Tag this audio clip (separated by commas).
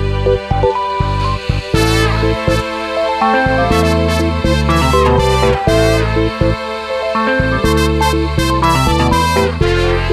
Music